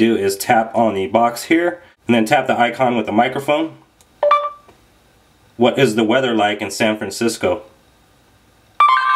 A man speaking, tapping on phone